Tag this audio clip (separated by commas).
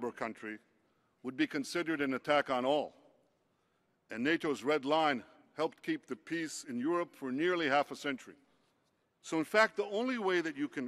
Speech